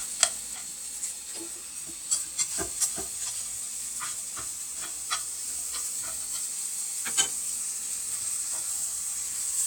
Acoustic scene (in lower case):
kitchen